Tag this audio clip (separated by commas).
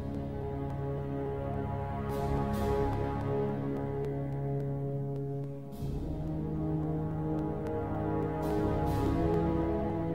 Music